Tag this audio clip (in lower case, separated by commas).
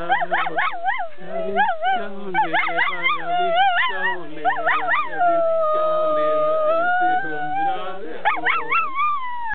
animal, dog, male singing, whimper (dog), domestic animals, bow-wow